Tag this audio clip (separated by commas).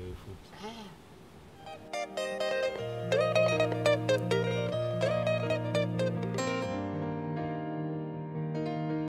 Music